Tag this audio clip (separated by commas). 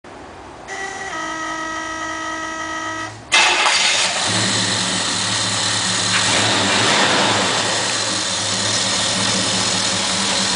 Engine, Car, Vehicle, inside a large room or hall